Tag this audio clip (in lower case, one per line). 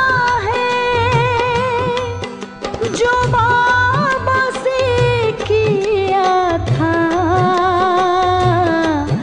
music of bollywood
music